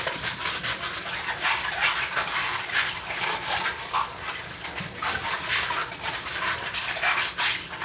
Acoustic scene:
kitchen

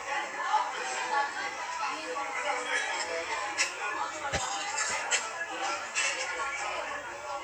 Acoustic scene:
restaurant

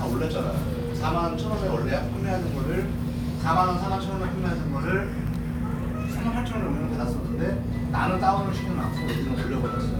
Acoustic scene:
crowded indoor space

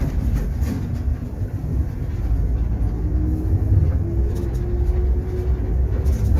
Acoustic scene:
bus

